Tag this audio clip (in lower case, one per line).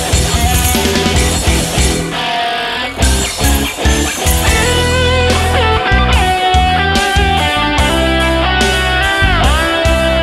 musical instrument
guitar
music
plucked string instrument